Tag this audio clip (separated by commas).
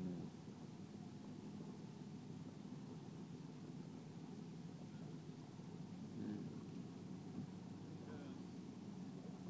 Boat